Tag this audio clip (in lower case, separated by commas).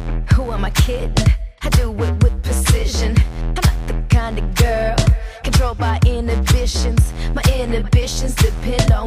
pop music, music